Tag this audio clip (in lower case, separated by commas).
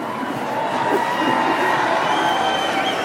human group actions, crowd, cheering